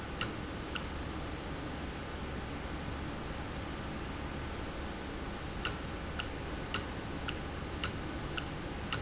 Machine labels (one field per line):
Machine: valve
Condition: normal